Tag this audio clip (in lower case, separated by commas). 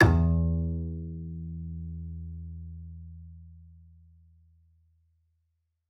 music, bowed string instrument, musical instrument